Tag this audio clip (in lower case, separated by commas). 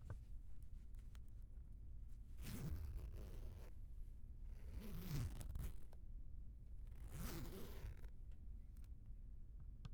zipper (clothing), domestic sounds